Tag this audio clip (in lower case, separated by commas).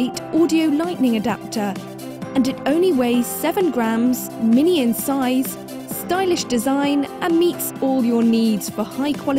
exciting music, music, speech